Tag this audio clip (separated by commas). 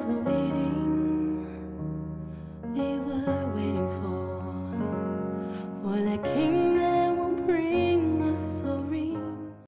Music